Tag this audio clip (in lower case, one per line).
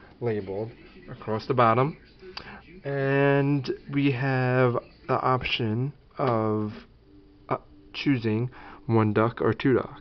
speech